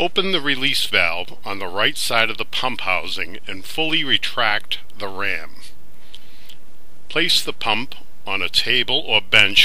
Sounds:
speech

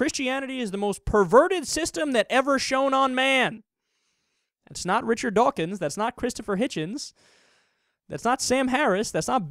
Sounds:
narration

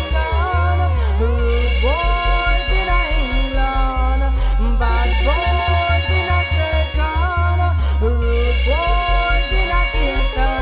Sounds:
music

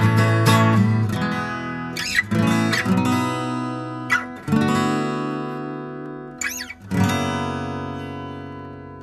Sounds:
plucked string instrument
music
strum
musical instrument
guitar

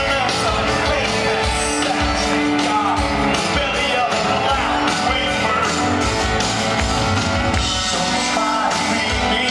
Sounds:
music

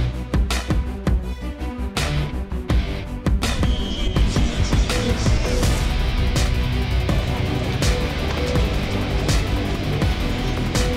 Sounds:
speech
music

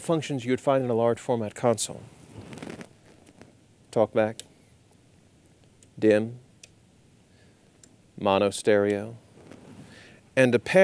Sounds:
speech

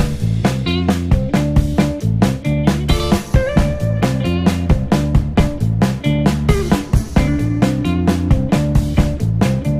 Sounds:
music

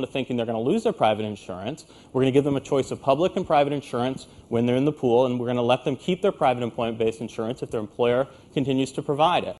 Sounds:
speech

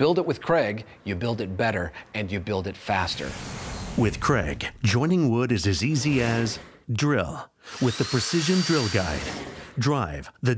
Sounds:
speech

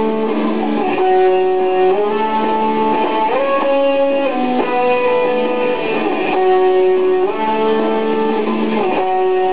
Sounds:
music

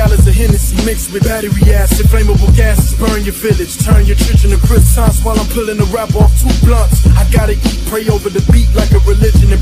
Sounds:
progressive rock
music

